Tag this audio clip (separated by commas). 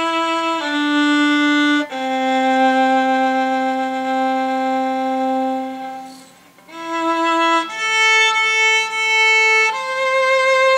Music, Musical instrument, Violin